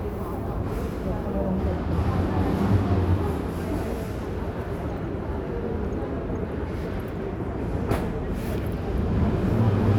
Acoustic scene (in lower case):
crowded indoor space